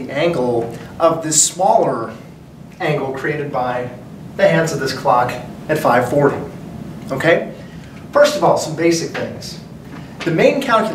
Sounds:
speech

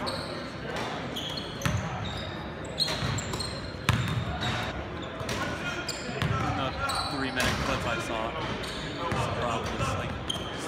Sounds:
basketball bounce

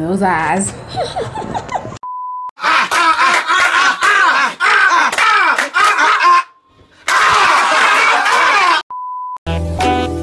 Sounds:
music, inside a large room or hall, speech

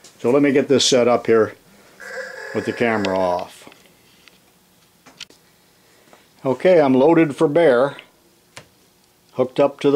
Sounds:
inside a small room, speech

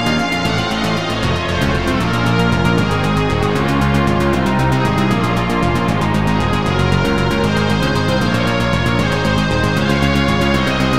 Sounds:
music, pop music

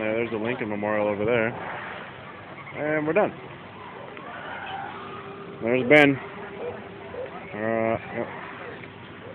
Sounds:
speech

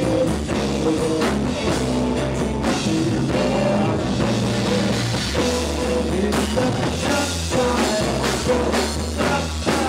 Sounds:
drum kit, rock music, plucked string instrument, guitar, music, musical instrument, playing drum kit, psychedelic rock

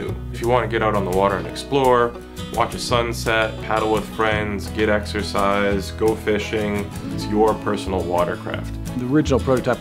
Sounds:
music, speech

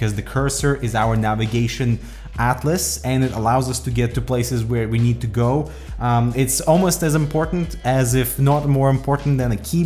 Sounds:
music, speech

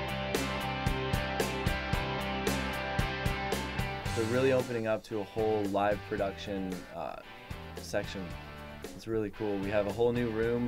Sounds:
music, speech

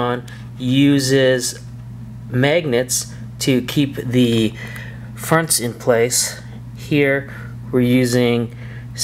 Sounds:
speech

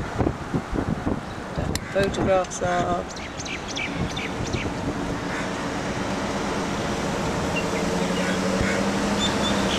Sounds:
speech, vehicle, car

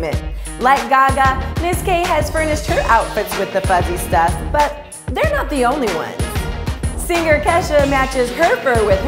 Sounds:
speech, music

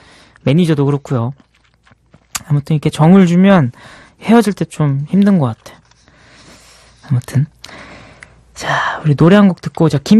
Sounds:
speech

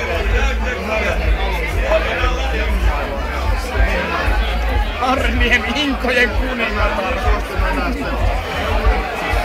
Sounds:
speech, music

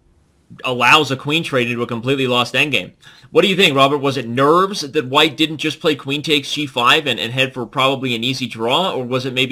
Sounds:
speech

